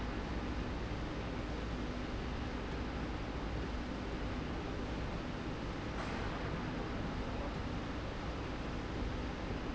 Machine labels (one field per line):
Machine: slide rail